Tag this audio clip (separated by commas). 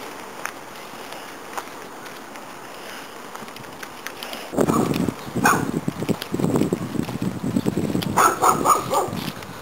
Walk